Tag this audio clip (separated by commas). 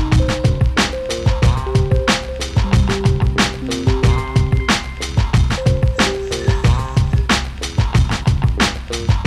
Music